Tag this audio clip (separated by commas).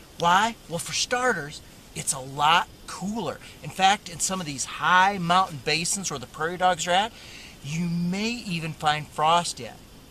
Speech